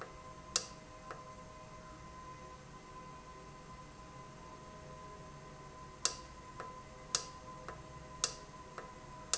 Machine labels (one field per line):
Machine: valve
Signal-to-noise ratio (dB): 6 dB